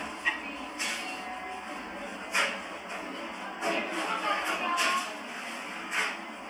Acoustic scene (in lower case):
cafe